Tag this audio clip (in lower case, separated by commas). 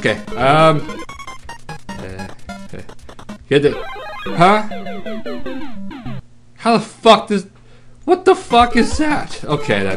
speech, music